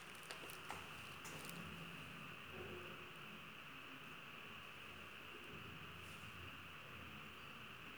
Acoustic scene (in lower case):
elevator